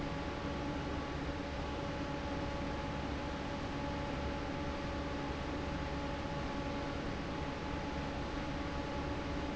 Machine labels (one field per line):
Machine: fan